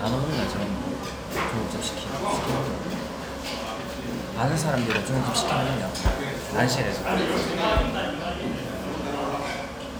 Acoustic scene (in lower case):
restaurant